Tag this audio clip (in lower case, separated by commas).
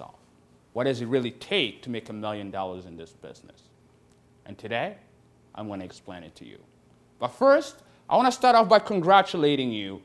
speech